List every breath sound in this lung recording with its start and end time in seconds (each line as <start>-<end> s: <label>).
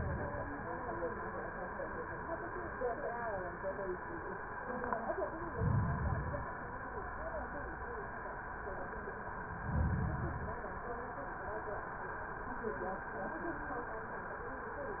5.49-6.54 s: inhalation
9.57-10.62 s: inhalation